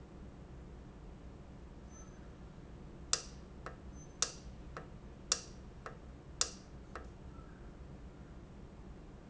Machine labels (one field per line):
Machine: valve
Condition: normal